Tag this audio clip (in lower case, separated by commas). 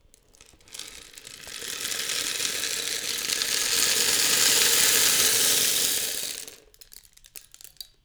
percussion, rattle (instrument), musical instrument, music